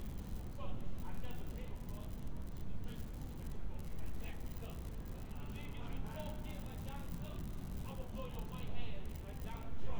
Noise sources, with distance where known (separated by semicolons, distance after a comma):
person or small group talking, far